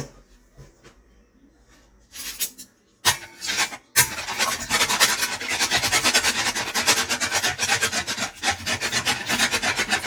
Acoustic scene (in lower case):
kitchen